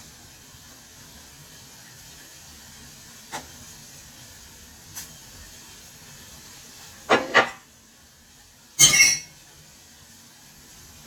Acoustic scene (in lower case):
kitchen